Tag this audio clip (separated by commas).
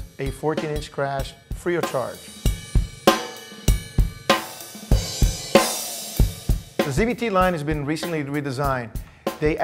Bass drum, Hi-hat, Percussion, Drum, Snare drum, Cymbal, Rimshot, Drum kit